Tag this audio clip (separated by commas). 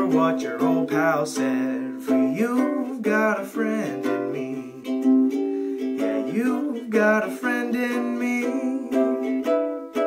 Ukulele, Music